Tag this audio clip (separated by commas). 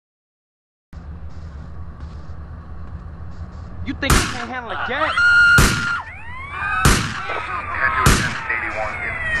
Speech